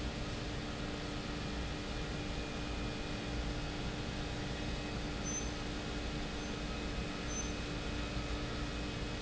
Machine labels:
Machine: pump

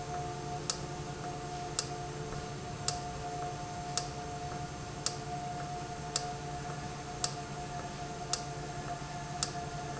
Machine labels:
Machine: valve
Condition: normal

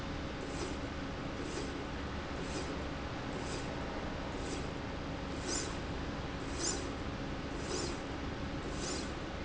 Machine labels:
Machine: slide rail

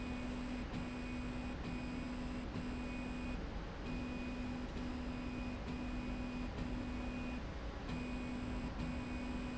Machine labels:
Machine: slide rail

